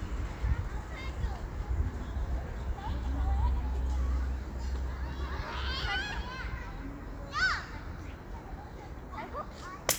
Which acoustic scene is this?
park